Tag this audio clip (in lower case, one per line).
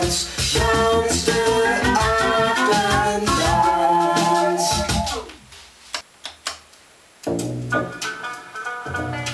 music